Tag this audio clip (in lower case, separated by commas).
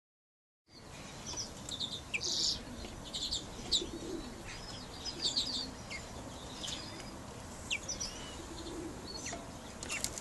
outside, urban or man-made, bird chirping, bird, chirp